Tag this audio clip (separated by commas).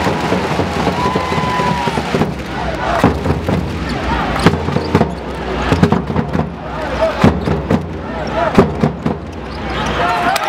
Slam